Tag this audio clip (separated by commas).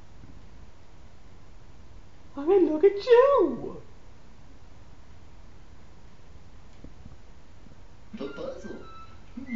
Speech